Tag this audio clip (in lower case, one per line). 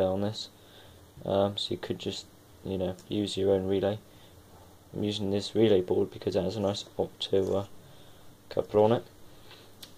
speech